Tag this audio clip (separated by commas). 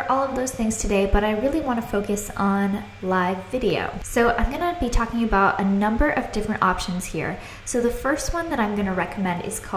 Speech